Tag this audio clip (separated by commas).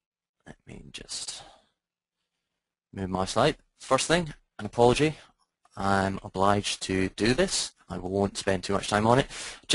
Speech